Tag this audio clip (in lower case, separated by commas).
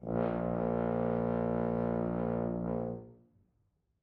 music, brass instrument, musical instrument